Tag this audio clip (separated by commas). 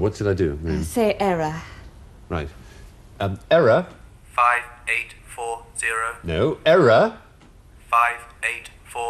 Speech, Female speech